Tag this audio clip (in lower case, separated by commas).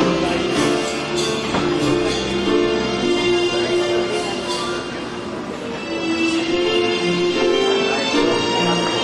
music, tender music, speech